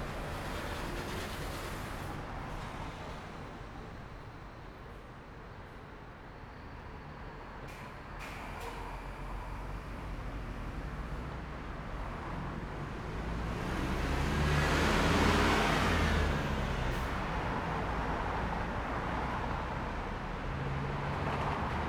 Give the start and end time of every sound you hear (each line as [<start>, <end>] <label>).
[0.00, 2.15] car
[0.00, 2.15] car wheels rolling
[0.00, 3.20] bus engine idling
[0.00, 19.52] bus
[4.09, 6.21] car
[4.09, 6.21] car wheels rolling
[6.62, 19.52] bus engine accelerating
[7.09, 11.71] car
[7.09, 11.71] car wheels rolling
[7.60, 9.01] bus compressor
[13.21, 21.88] car
[13.21, 21.88] car wheels rolling
[16.75, 17.32] bus compressor
[20.59, 21.88] truck
[20.59, 21.88] truck engine accelerating